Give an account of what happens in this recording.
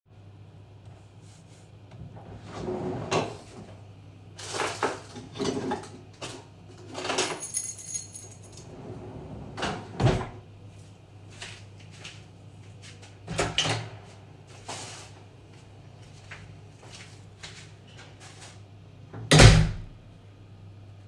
I opened the drawer and searched for a key, then closed it then i opened the door and walked outside and closed the door.